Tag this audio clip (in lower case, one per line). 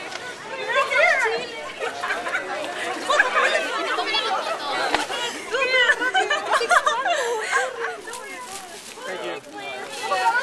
speech